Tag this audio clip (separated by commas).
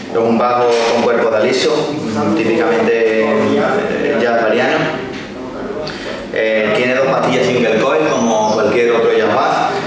Speech